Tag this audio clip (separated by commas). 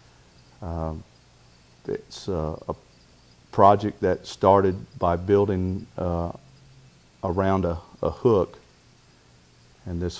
Speech